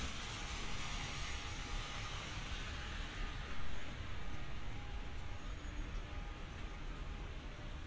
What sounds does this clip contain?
medium-sounding engine